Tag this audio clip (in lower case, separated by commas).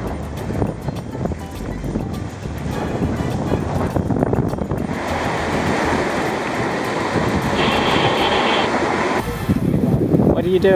water vehicle, vehicle, music, sailboat, outside, rural or natural